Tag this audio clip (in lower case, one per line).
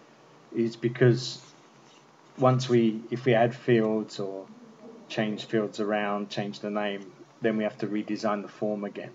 speech